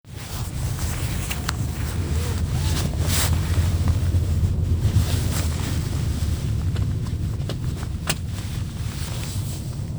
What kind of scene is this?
car